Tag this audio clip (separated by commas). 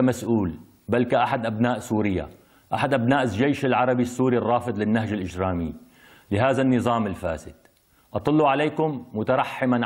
Speech